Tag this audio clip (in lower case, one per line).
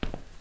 footsteps